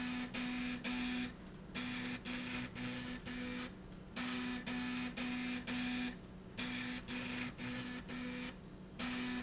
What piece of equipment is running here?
slide rail